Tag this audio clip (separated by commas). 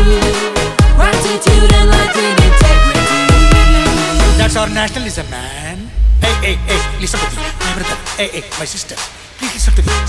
Music